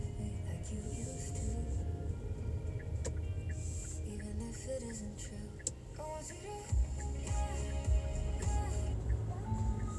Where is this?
in a car